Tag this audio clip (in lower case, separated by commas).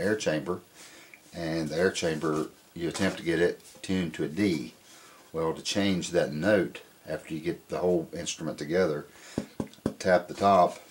speech